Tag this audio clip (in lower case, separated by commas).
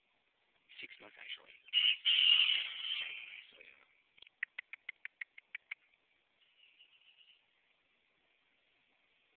cock-a-doodle-doo, speech, animal